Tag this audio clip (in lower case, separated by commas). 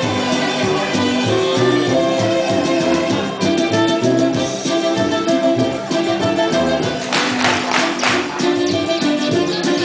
music